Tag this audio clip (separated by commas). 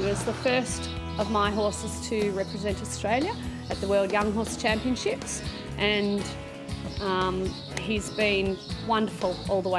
Music, Speech